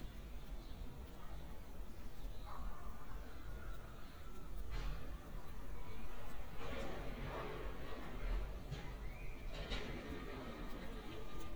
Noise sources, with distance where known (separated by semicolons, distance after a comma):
dog barking or whining, far